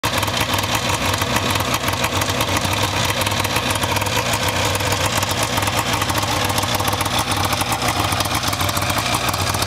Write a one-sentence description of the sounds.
A vehicle motor is idling and vibrating